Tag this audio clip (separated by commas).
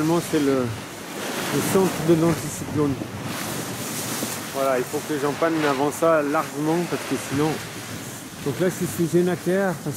Speech